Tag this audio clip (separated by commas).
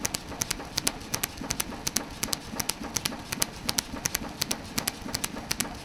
Tools